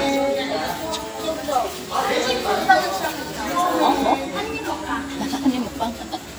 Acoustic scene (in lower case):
restaurant